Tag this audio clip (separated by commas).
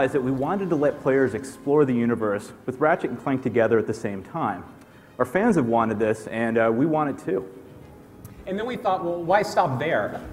Music, Speech